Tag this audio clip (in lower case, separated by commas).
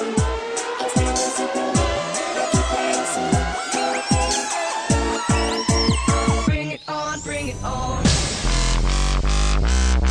music, dubstep, electronic music